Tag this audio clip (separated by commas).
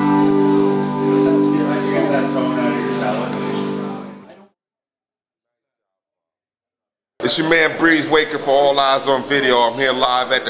Music, Steel guitar, Speech